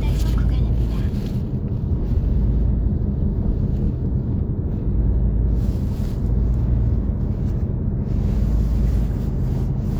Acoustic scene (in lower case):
car